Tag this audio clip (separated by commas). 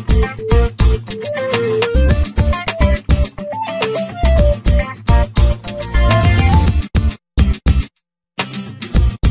Music